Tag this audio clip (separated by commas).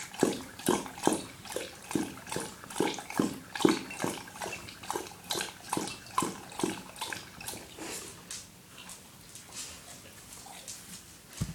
pets, Animal, Dog